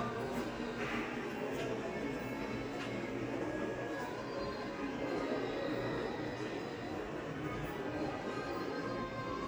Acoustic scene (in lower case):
crowded indoor space